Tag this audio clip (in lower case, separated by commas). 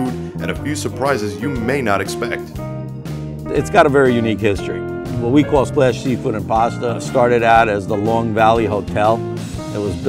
music, speech